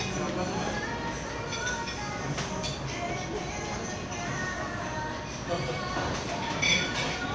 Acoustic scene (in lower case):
crowded indoor space